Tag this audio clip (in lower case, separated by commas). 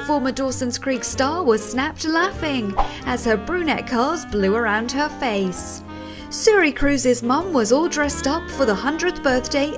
music, speech